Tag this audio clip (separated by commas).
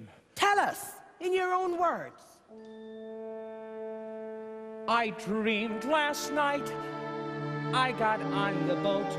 Speech, Music